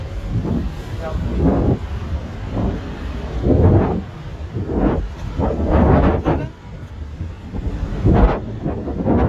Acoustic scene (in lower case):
street